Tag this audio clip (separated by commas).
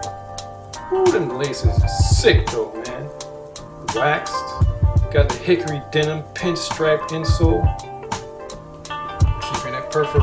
Music, Speech